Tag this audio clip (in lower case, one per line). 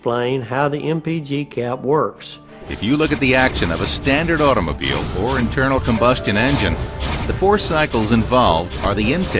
speech
music